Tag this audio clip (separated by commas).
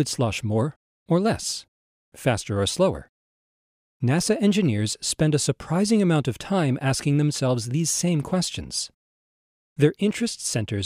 Speech